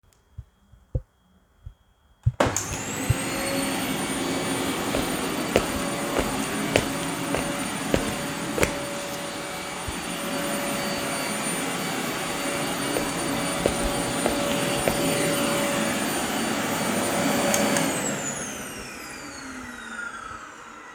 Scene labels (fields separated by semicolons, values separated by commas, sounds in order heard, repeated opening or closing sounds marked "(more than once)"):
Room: living room; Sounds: vacuum cleaner, footsteps